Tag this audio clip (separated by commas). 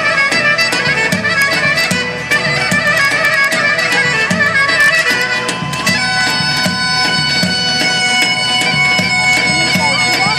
Bagpipes, playing bagpipes, Wind instrument